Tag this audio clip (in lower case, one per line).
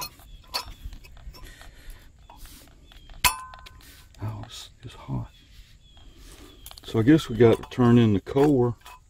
speech